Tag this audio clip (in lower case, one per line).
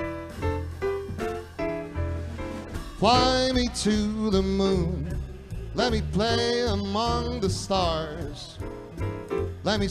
music